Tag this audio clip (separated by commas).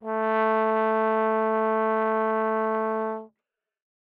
Music, Musical instrument, Brass instrument